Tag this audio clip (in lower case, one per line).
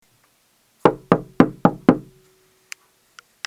domestic sounds
wood
knock
door